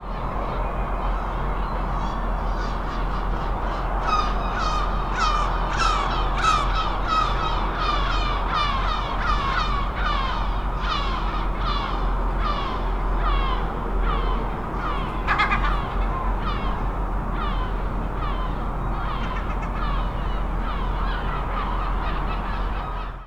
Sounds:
gull, animal, wild animals, bird

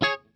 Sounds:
music, guitar, musical instrument, plucked string instrument

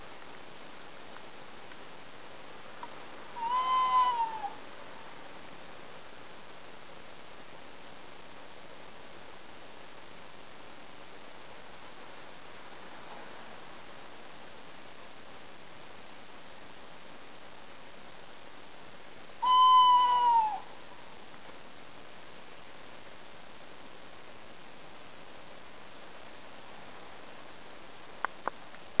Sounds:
bird, animal, wild animals

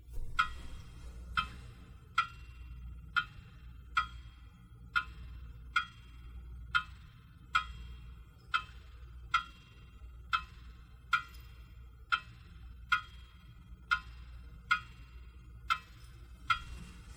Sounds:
mechanisms, clock

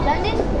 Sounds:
speech, human voice

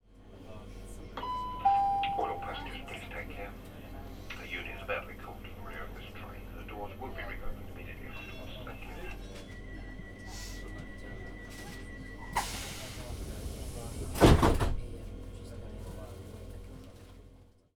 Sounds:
train, rail transport, vehicle

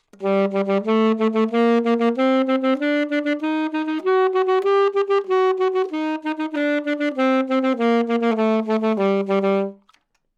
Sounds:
wind instrument, musical instrument, music

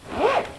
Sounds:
zipper (clothing), home sounds

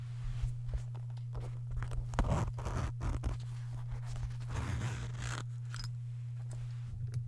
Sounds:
zipper (clothing), home sounds

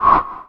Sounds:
whoosh

